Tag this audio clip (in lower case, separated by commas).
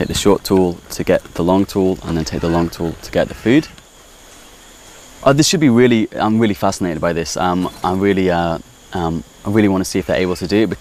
speech